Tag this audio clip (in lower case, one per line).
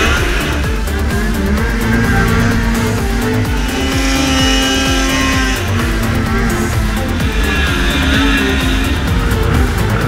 driving snowmobile